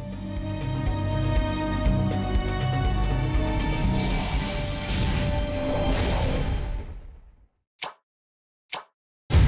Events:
0.0s-7.6s: video game sound
0.0s-7.6s: music
3.9s-6.6s: sound effect
7.8s-8.0s: sound effect
7.8s-8.0s: video game sound
8.7s-8.9s: sound effect
8.7s-8.9s: video game sound

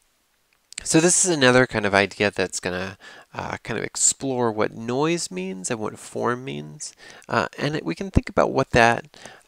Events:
0.0s-9.4s: background noise
0.5s-0.8s: clicking
0.7s-3.0s: man speaking
3.0s-3.2s: breathing
3.3s-7.0s: man speaking
6.9s-7.2s: breathing
7.2s-9.1s: man speaking
9.1s-9.4s: breathing
9.2s-9.3s: tap

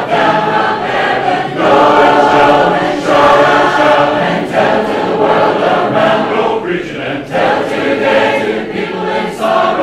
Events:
0.0s-9.8s: singing

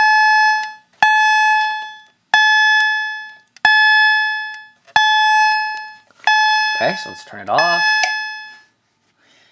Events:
0.0s-0.8s: fire alarm
0.0s-9.5s: mechanisms
0.6s-0.7s: tick
1.0s-2.2s: fire alarm
1.5s-2.1s: generic impact sounds
2.3s-3.5s: fire alarm
2.8s-2.8s: tick
3.2s-3.6s: generic impact sounds
3.6s-4.7s: fire alarm
4.5s-4.6s: tick
4.7s-4.9s: generic impact sounds
4.9s-6.1s: fire alarm
5.5s-5.5s: tick
5.6s-6.0s: generic impact sounds
5.7s-5.8s: tick
6.2s-7.3s: fire alarm
6.7s-7.8s: male speech
7.5s-8.8s: fire alarm
8.0s-8.1s: tick
8.4s-8.7s: breathing
9.1s-9.5s: breathing

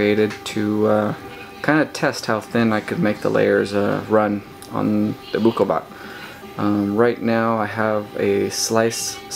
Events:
0.0s-1.1s: man speaking
0.0s-9.3s: printer
1.3s-1.6s: speech
1.6s-4.4s: man speaking
2.6s-2.9s: surface contact
3.0s-3.4s: surface contact
3.6s-4.0s: surface contact
4.6s-4.7s: generic impact sounds
4.6s-5.2s: man speaking
5.3s-5.8s: man speaking
5.9s-6.5s: breathing
6.5s-9.3s: man speaking

